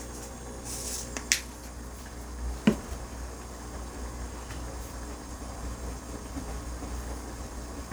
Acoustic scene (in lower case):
kitchen